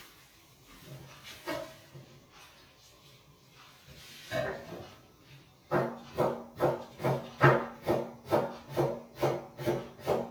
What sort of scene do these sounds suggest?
kitchen